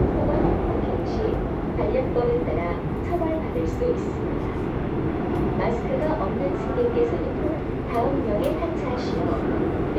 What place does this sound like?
subway train